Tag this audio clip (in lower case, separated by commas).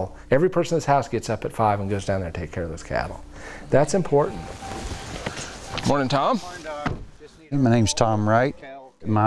speech